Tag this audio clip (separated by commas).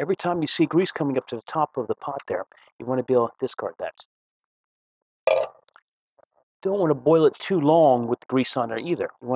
Speech, clink